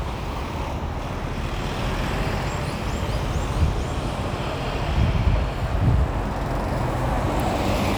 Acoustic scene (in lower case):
street